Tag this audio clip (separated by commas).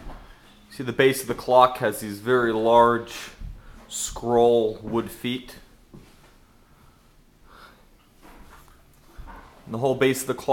Speech